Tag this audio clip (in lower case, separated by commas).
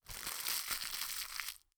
crinkling